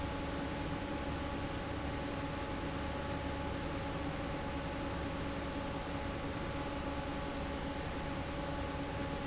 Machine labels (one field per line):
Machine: fan